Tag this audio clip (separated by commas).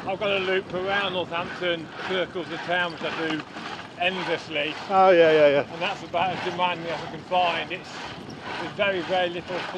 Bicycle, outside, rural or natural, Speech, Vehicle